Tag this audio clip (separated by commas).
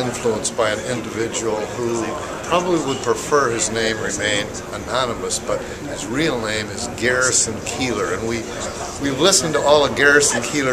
Speech